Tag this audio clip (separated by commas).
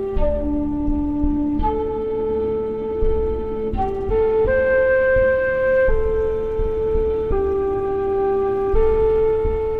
Music, Flute